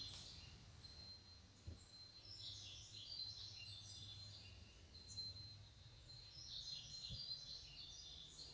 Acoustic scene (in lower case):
park